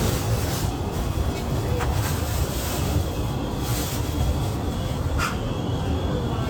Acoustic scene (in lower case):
subway train